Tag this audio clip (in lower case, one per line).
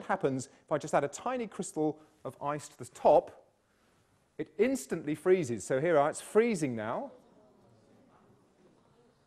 speech